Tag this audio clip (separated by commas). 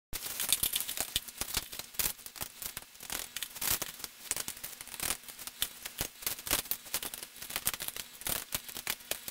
Crackle